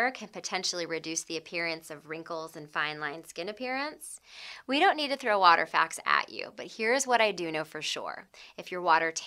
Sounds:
speech

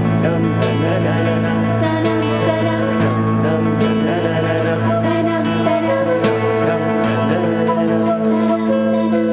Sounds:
music

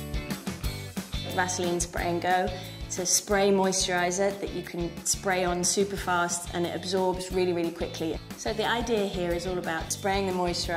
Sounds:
speech, music

